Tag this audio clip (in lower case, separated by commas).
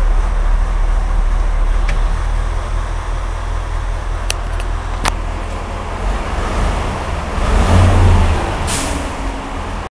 vehicle, vroom